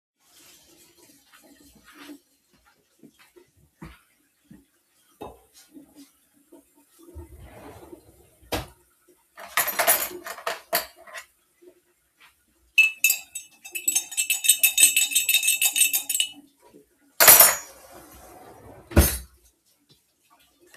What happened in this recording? I walked into the kitchen while the tap water was running. I opened a drawer to get a spoon, then closed the drawer and stirred my tea.